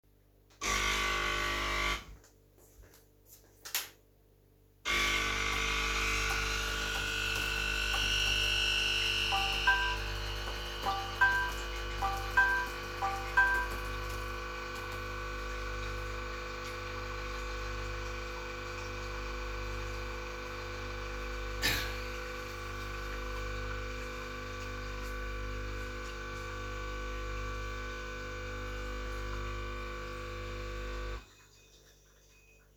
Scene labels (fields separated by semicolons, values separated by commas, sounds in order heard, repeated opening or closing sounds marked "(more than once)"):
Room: kitchen, living room; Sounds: coffee machine, keyboard typing, phone ringing